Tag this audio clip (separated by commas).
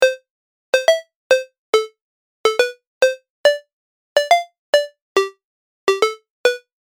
Alarm, Telephone, Ringtone